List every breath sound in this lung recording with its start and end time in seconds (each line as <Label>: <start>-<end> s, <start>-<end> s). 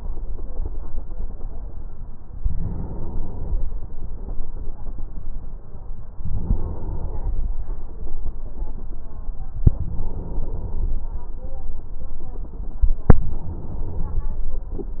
Inhalation: 2.31-3.72 s, 6.21-7.51 s, 9.73-11.03 s, 13.12-14.42 s